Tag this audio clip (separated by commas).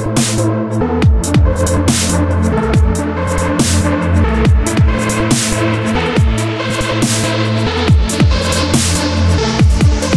Dubstep, Music